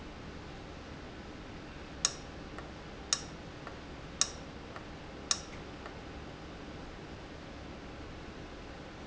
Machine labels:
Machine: valve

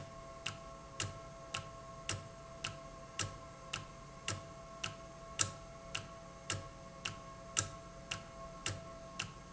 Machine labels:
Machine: valve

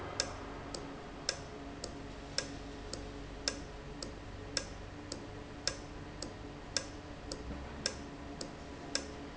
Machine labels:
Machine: valve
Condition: normal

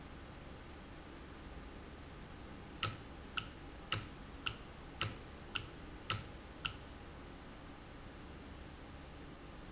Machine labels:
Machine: valve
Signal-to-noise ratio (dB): 6 dB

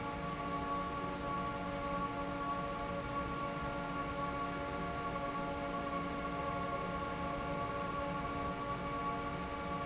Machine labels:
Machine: fan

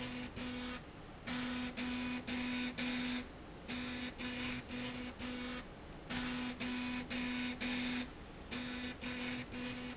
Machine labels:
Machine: slide rail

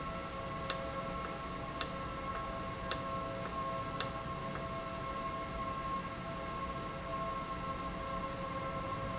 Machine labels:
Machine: valve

